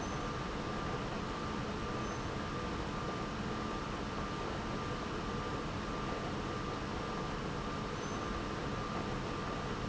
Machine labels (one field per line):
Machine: pump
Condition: abnormal